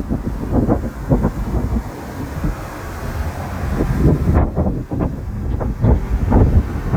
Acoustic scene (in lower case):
street